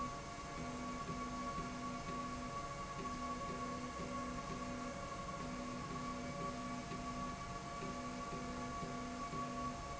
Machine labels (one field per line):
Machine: slide rail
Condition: normal